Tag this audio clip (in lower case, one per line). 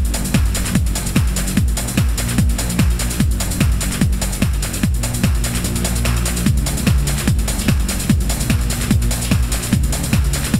music
techno
electronic music